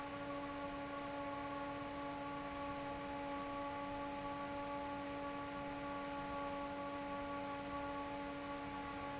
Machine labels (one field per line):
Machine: fan